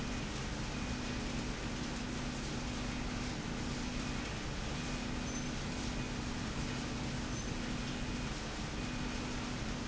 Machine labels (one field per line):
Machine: slide rail